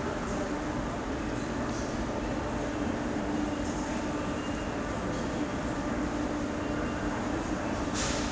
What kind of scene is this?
subway station